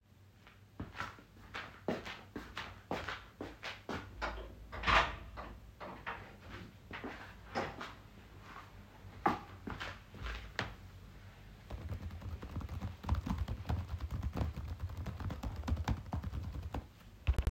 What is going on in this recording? Walking to door, closing it, returning to seat, and typing.